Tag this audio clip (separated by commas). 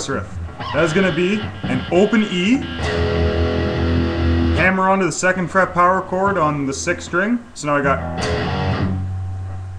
Musical instrument, Music, Guitar, Plucked string instrument, Speech